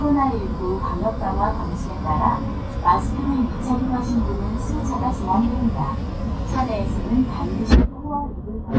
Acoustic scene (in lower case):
bus